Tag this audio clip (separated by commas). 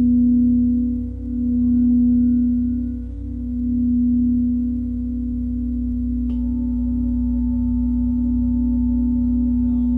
Singing bowl